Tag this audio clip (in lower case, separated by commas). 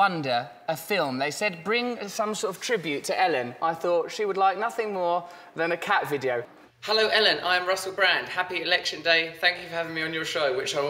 speech